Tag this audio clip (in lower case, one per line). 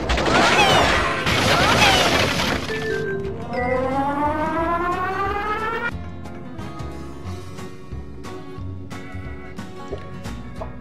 music